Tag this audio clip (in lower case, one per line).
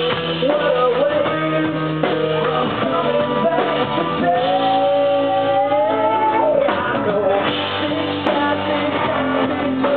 music